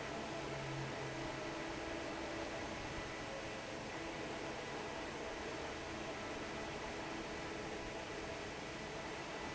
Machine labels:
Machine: fan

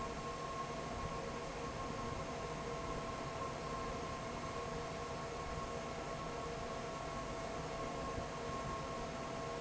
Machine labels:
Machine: fan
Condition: normal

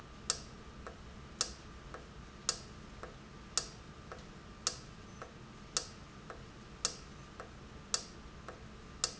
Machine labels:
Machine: valve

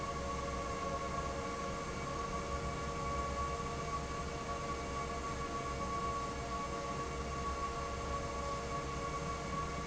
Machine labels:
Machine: fan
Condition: normal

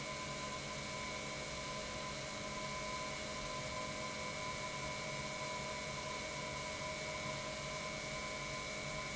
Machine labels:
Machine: pump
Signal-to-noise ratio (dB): 0 dB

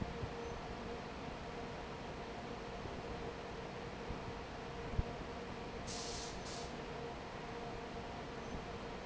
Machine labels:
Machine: fan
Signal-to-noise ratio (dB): 6 dB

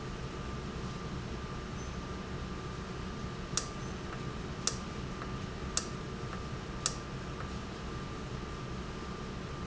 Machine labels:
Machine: valve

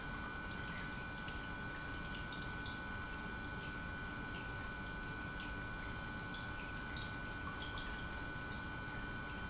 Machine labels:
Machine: pump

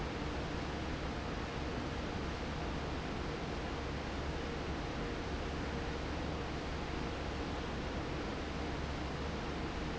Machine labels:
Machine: fan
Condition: normal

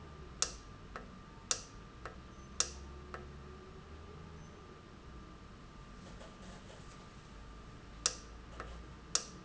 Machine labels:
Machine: valve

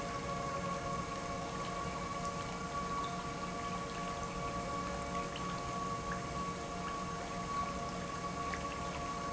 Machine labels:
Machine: pump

